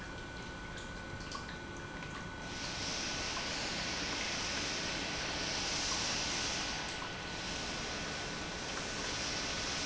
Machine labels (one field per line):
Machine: pump